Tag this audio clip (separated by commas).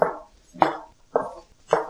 footsteps